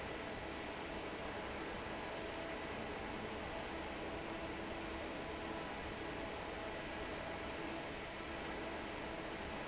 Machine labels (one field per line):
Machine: fan